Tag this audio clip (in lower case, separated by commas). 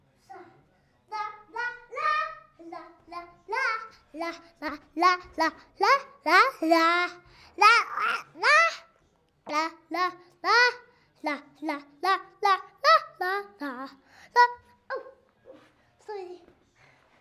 human voice, singing